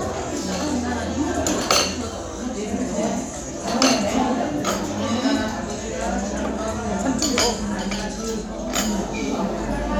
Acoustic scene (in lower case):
restaurant